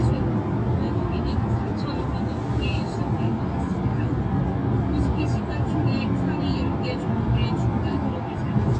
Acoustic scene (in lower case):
car